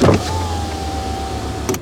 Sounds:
vehicle, car, motor vehicle (road)

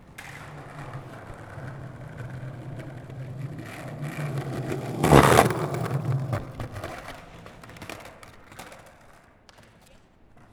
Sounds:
vehicle, skateboard

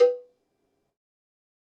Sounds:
bell, cowbell

